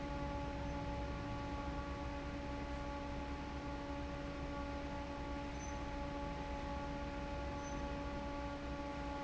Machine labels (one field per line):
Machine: fan